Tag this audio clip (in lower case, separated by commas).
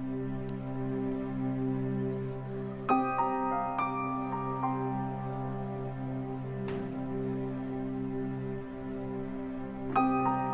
music